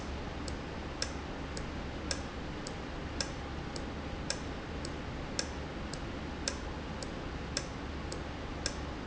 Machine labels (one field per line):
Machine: valve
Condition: normal